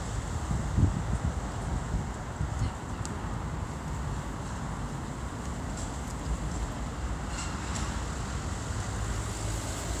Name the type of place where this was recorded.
street